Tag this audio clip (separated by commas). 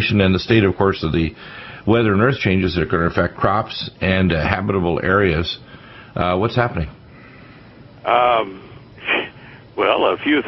Speech